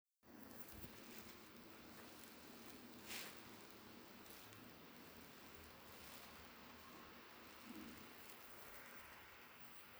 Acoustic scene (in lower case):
elevator